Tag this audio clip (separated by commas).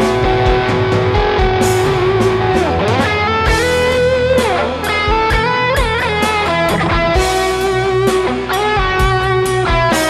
Plucked string instrument, Electric guitar, Musical instrument, Guitar, Music, Strum